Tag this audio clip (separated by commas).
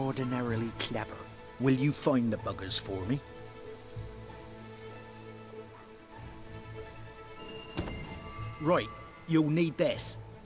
Speech, Music